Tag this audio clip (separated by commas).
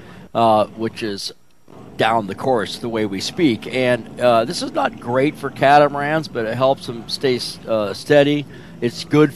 Speech